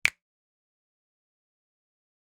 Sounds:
finger snapping
hands

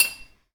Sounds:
glass

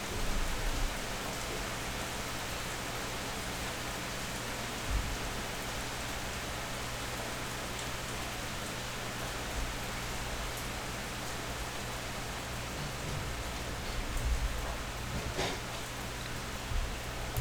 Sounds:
rain
water

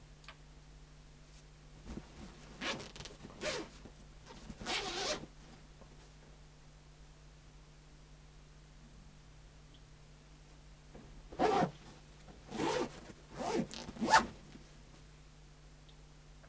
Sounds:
home sounds
zipper (clothing)

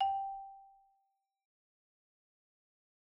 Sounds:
mallet percussion
percussion
musical instrument
marimba
music

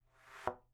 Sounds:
thump

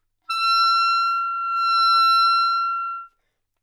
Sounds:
wind instrument
music
musical instrument

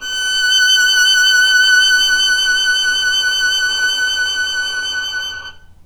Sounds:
musical instrument
music
bowed string instrument

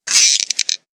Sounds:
squeak

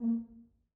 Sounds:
musical instrument
brass instrument
music

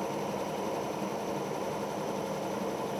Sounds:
vehicle
aircraft

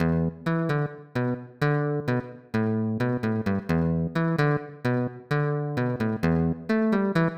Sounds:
musical instrument
plucked string instrument
music
guitar

